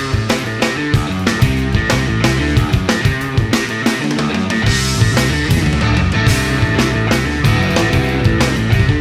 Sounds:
Music

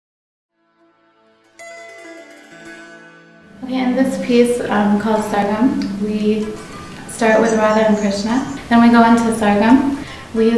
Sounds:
Speech, inside a large room or hall, Music

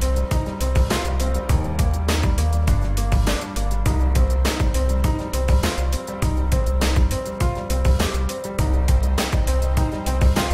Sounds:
Music

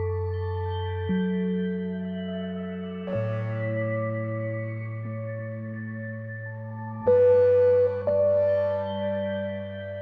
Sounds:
Music

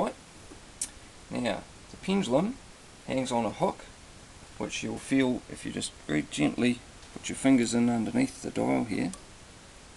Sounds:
Speech

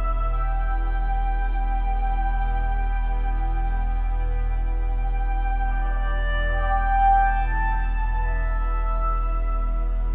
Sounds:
Music

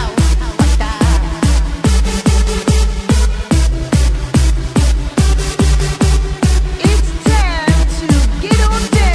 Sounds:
Electronic music, Techno, Music, Speech

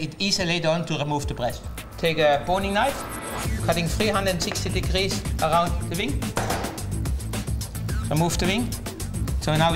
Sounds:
Music, Speech

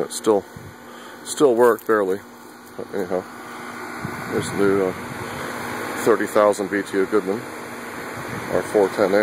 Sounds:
Air conditioning, Speech

